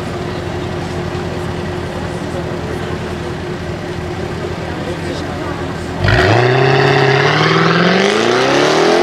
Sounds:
engine accelerating

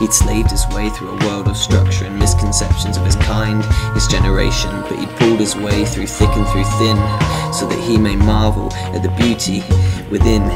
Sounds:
Speech, Music

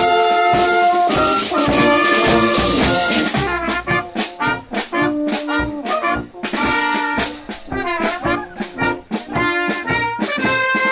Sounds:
Music

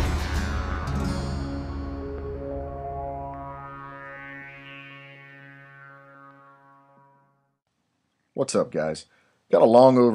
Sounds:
Speech, Music

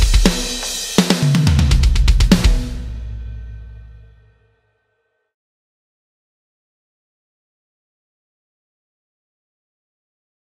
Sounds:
Music

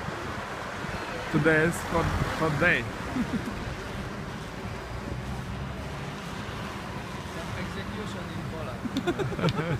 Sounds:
roadway noise

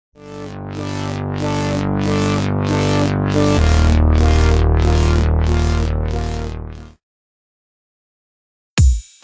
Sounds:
Music

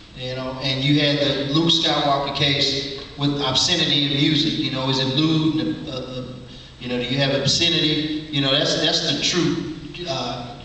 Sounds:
Speech

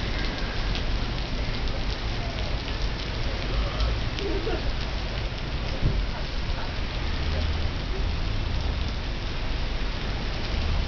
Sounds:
Rain, Rain on surface

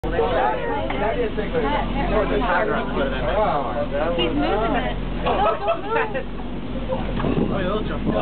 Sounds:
Vehicle, Car, Speech

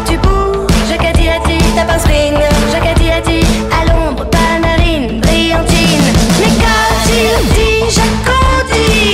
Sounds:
Music

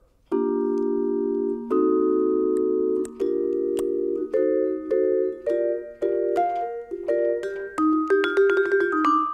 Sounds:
playing vibraphone

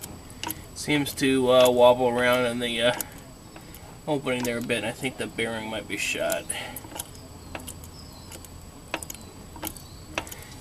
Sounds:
Speech

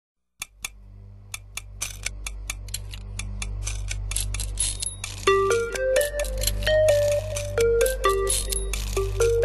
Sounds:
Theme music, Music

